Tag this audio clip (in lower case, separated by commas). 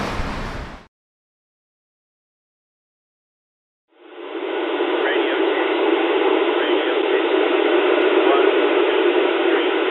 white noise, speech